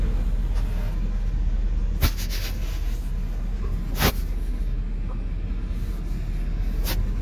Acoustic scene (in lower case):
bus